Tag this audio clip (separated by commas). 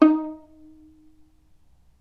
Music, Musical instrument, Bowed string instrument